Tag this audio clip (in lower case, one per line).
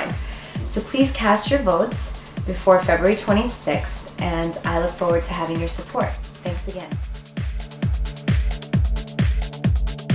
music
speech